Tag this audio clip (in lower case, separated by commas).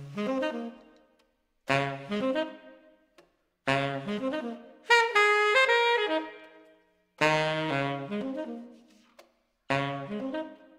music, musical instrument